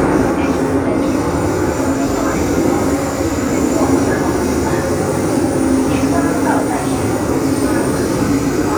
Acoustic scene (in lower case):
subway train